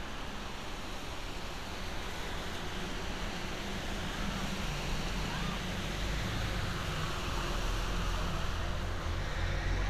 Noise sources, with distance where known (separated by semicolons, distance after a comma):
unidentified human voice, far